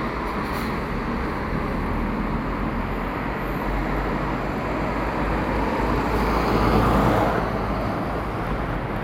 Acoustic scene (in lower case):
street